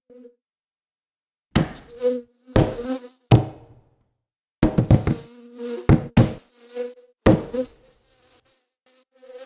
Pounding is occurring and an insect is buzzing